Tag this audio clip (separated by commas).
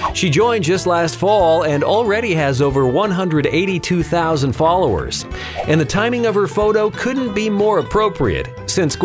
Music, Speech